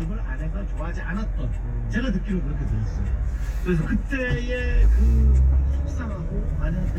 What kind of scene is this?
car